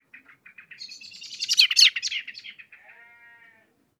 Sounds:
bird, animal, wild animals

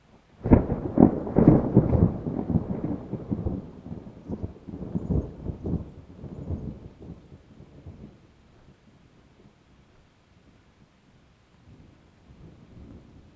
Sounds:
thunder, thunderstorm

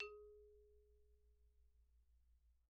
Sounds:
mallet percussion, xylophone, musical instrument, percussion, music

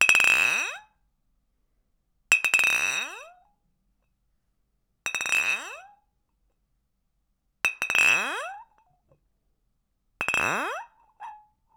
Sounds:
clink, glass

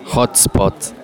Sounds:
human voice, speech

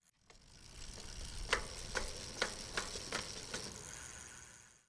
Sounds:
vehicle, bicycle

